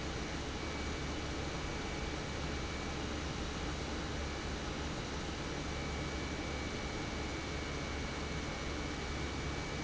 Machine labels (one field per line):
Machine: pump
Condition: normal